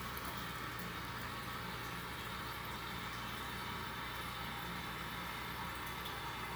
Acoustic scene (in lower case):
restroom